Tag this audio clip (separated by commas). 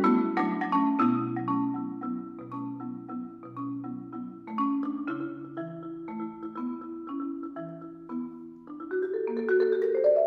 xylophone, Vibraphone, Music